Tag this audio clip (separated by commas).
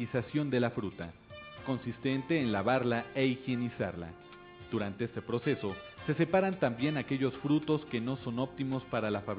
Music, Speech